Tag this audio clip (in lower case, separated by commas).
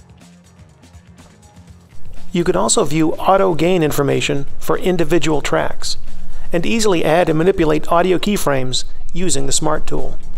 music, speech